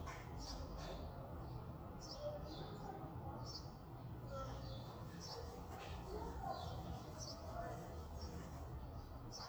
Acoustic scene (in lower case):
residential area